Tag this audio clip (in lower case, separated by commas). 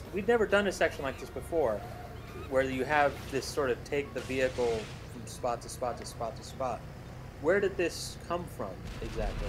speech